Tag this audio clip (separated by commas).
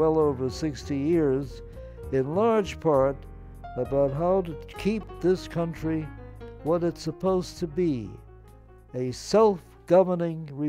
Narration, man speaking, Speech, Music